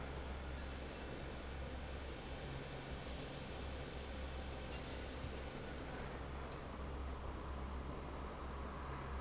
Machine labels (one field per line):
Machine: fan